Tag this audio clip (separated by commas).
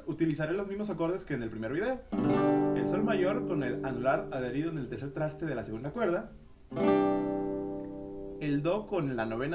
Music, Acoustic guitar, Speech